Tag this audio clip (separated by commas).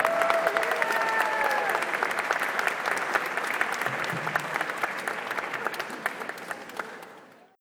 Applause, Crowd, Human group actions, Cheering